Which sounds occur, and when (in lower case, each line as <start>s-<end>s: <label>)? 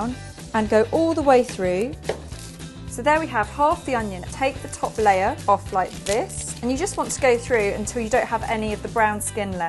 0.0s-9.6s: music
2.0s-2.3s: chopping (food)
5.9s-7.2s: tearing
8.9s-9.6s: female speech